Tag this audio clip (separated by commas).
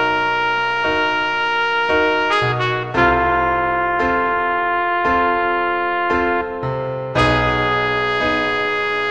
Trumpet, Music, Musical instrument